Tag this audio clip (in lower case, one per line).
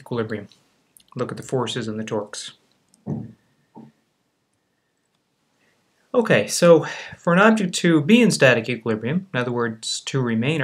speech